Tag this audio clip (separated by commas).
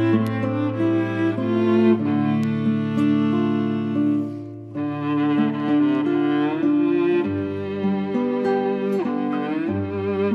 Music